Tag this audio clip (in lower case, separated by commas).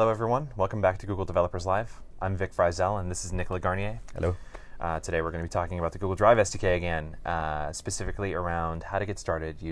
speech